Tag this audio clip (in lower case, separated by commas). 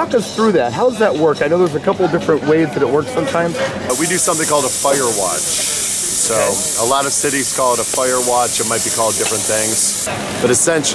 speech, music